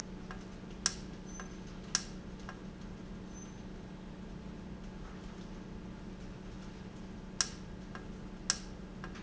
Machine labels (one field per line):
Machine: valve